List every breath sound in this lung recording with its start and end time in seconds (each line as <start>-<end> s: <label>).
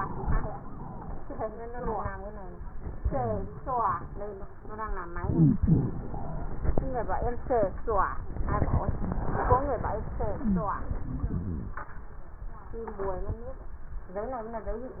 5.13-5.64 s: inhalation
5.18-5.61 s: wheeze
5.66-6.72 s: exhalation
5.66-6.72 s: wheeze